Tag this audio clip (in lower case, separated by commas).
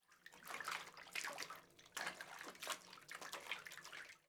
domestic sounds, water, bathtub (filling or washing)